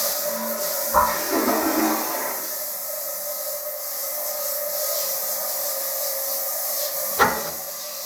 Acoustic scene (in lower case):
restroom